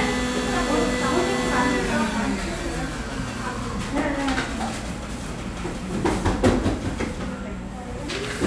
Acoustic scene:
cafe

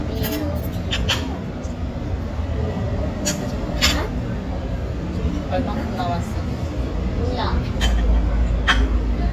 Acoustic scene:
restaurant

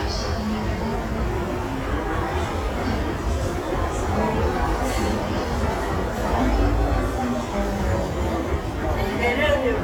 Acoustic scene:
crowded indoor space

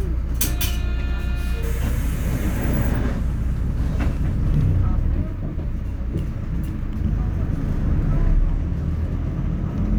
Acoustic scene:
bus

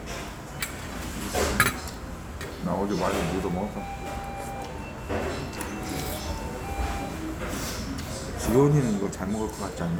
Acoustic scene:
restaurant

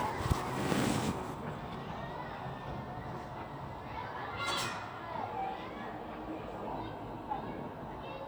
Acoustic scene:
residential area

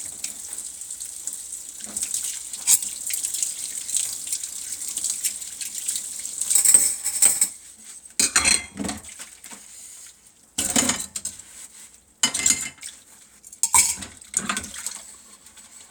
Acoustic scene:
kitchen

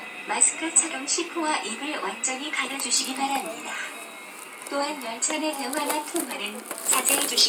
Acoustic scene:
subway train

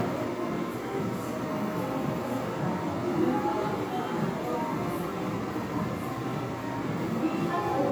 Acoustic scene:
crowded indoor space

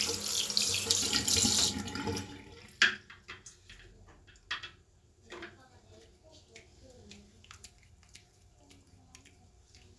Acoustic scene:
restroom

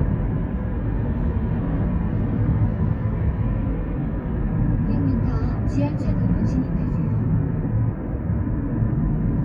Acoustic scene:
car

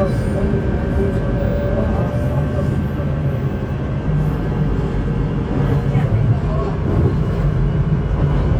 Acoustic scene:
subway train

